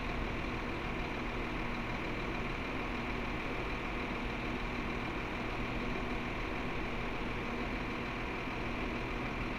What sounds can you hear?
engine of unclear size